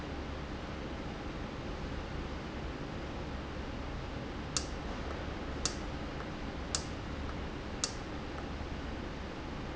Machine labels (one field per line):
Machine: valve